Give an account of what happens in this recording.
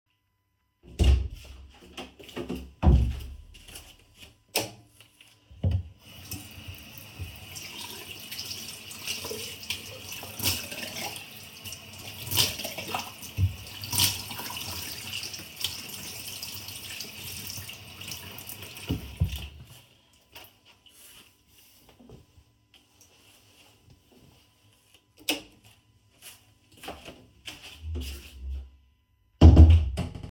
I opened the washroom door, turned on the lights, then tap the water, washed my face. I dried my hands with towel. Finally, turned off the light and came out and close the door.